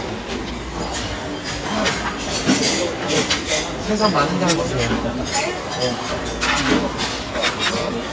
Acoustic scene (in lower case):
restaurant